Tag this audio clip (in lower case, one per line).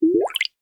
gurgling
water